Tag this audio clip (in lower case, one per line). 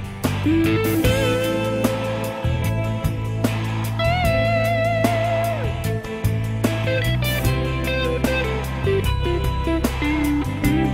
music